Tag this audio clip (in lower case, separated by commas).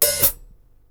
percussion, musical instrument, cymbal, music, hi-hat